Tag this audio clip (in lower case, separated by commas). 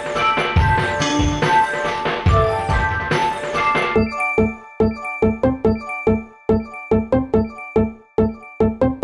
music, keys jangling, ping, sound effect